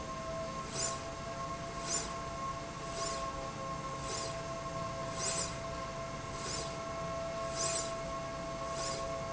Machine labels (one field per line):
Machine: slide rail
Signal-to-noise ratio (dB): -6 dB